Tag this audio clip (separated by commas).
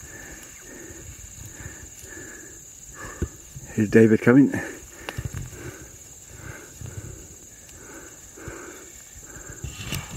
Speech